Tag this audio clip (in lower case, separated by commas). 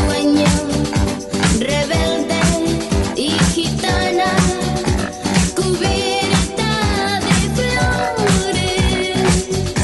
music